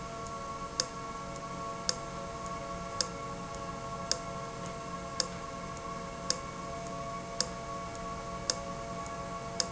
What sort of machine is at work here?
valve